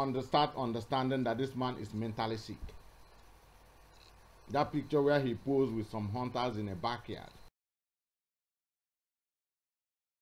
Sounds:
speech

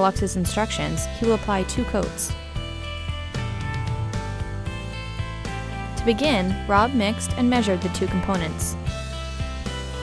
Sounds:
music, speech

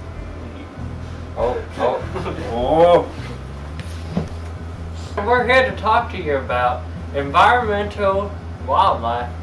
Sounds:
speech, music

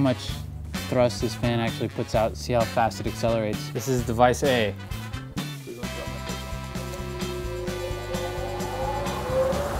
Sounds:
music, speech

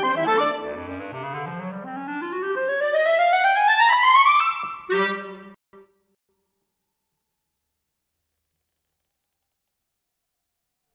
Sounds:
clarinet

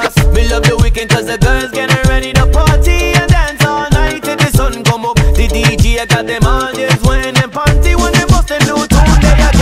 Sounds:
rapping, singing, pop music, hip hop music, music

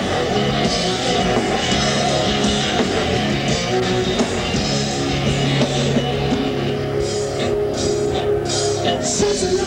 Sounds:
rock music, music

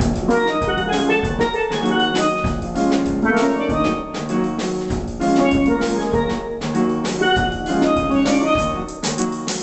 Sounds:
playing steelpan

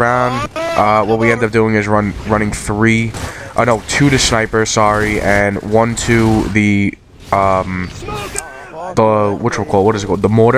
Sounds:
speech

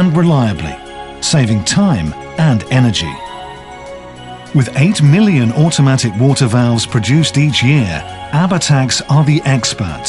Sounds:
music, speech

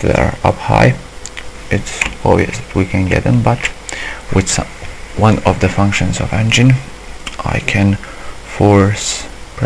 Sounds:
speech

